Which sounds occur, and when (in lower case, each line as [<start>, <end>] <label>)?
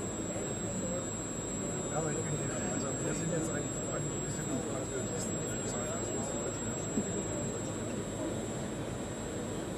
[0.00, 9.75] printer
[0.23, 1.14] speech
[1.88, 3.99] man speaking
[2.73, 2.85] tick
[4.23, 5.29] man speaking
[5.48, 6.76] man speaking
[5.71, 8.35] speech
[6.92, 7.04] tap